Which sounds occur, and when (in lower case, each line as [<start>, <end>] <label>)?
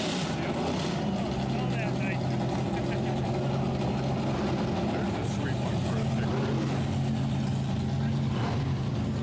[0.00, 9.22] race car
[0.24, 0.77] man speaking
[1.64, 2.21] man speaking
[4.79, 6.93] man speaking